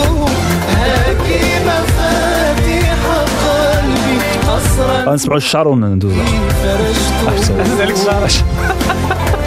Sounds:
music
speech

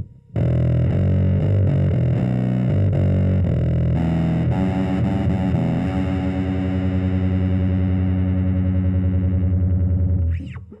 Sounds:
bass guitar
effects unit
musical instrument
music

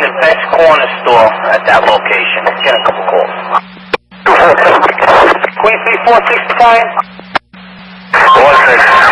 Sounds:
speech

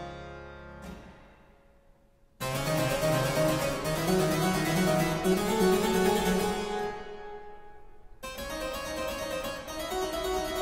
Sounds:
music
harpsichord
playing harpsichord

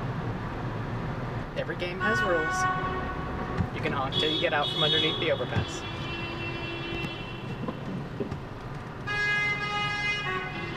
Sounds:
honking

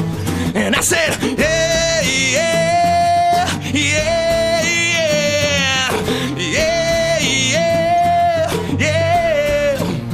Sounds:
music

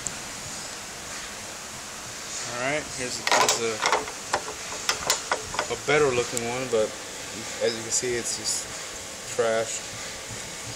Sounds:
speech

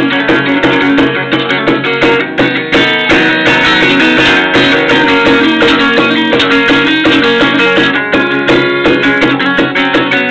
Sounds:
plucked string instrument
music
strum
musical instrument
acoustic guitar
guitar

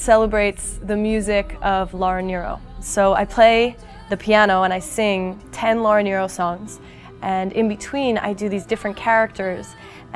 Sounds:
music
speech

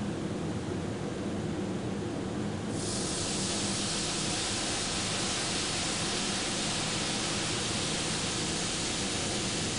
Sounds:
white noise

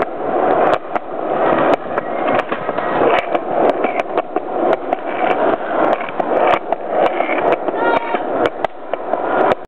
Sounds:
speech
vehicle

